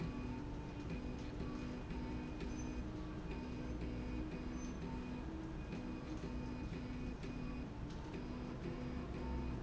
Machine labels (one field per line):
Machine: slide rail